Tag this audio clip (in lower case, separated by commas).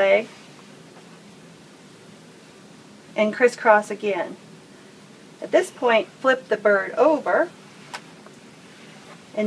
speech